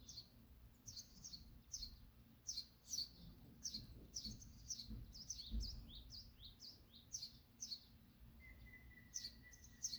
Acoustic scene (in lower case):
park